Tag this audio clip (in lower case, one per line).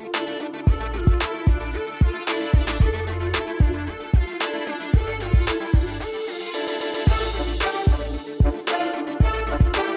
exciting music
music